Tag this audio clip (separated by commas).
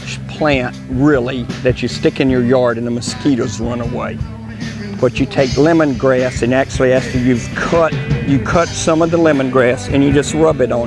Speech, Music